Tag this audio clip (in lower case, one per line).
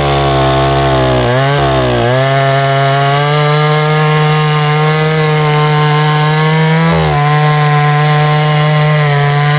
chainsaw
tools
power tool
chainsawing trees